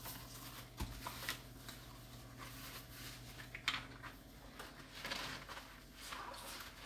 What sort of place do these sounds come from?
kitchen